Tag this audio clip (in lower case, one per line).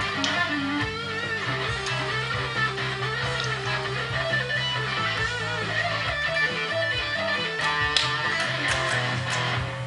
music
electric guitar
plucked string instrument
musical instrument
guitar